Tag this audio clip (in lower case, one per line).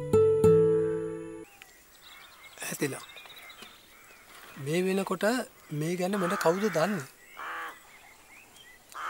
speech
outside, rural or natural
music